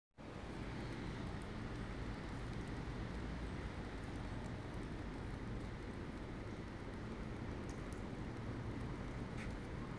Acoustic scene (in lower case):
residential area